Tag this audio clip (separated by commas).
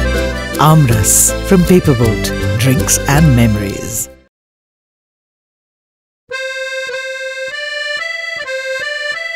Speech, Music